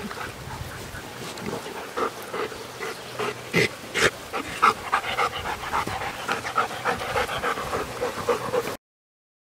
The wind is blowing, a dog is panting, and birds are chirping